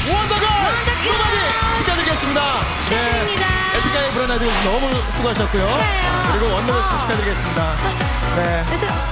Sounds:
music
funk
speech

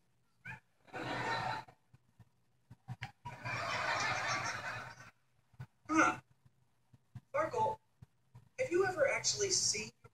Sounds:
speech
inside a small room

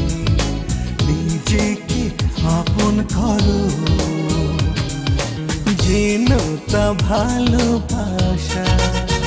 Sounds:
music
singing

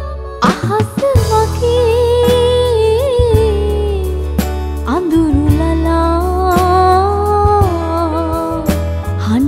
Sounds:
music

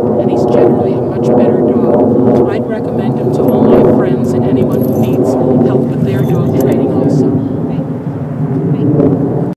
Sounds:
speech

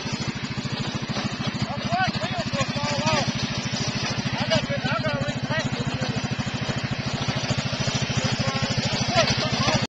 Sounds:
speech
vehicle

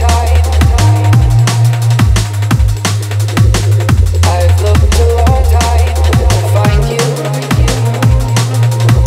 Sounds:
music
drum and bass

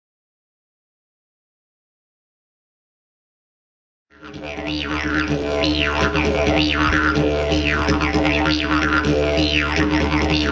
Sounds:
music
didgeridoo
musical instrument

